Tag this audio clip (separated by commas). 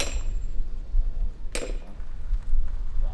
Hammer, Tools